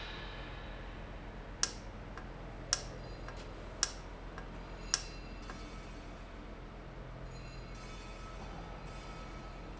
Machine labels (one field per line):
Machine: valve